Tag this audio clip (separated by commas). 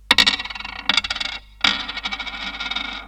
Domestic sounds, Coin (dropping)